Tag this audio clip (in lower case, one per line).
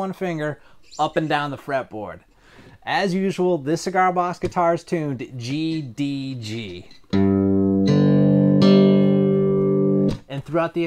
musical instrument
plucked string instrument
music
speech
guitar